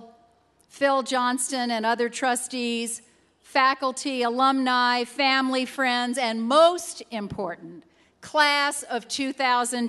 A woman is giving a speech confidently